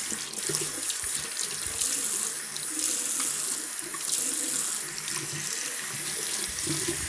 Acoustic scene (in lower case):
restroom